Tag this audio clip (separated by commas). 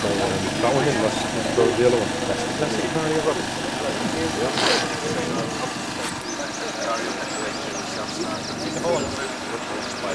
Speech